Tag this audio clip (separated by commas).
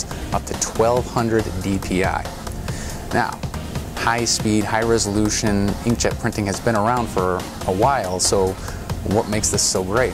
Music, Speech